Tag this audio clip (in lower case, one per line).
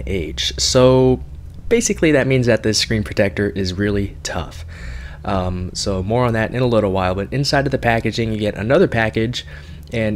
speech